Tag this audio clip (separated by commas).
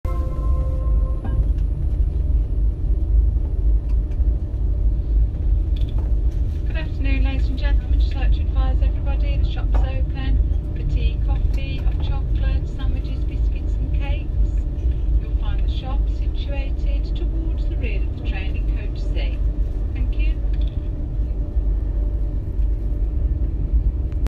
Vehicle, Rail transport, Train